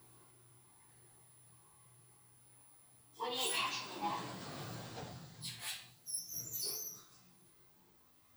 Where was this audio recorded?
in an elevator